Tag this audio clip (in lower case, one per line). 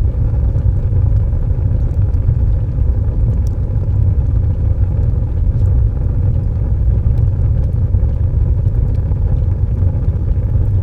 fire